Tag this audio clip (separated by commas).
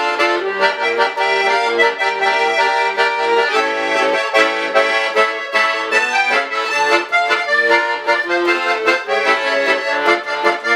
Accordion, Music, playing accordion